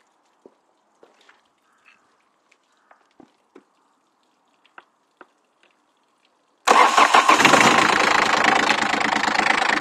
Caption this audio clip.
Footsteps occur, and a motor starts up, idling and vibrating